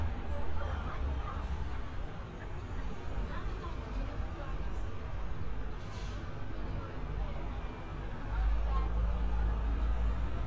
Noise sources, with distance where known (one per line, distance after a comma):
person or small group talking, far